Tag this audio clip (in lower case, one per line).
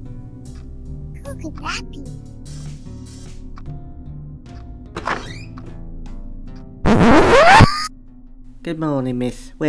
speech
inside a small room
outside, rural or natural
music